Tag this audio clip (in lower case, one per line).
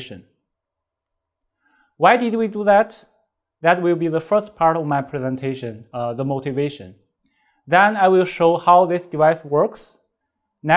speech